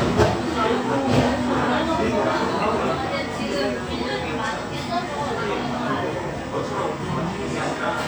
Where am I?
in a cafe